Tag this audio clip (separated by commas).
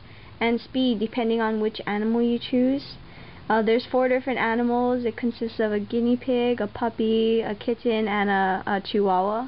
Speech